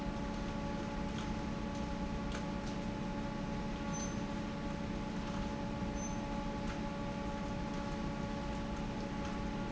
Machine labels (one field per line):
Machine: fan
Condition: normal